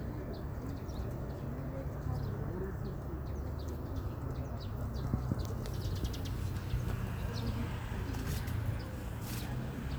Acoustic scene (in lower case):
park